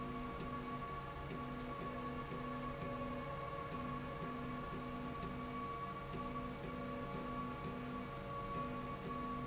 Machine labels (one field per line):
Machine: slide rail